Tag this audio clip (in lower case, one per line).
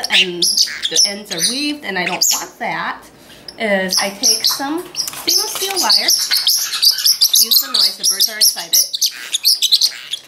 speech